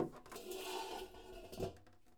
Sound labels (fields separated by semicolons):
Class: furniture moving; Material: metal